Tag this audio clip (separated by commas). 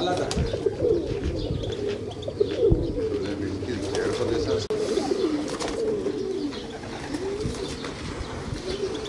Bird, dove, Coo, Speech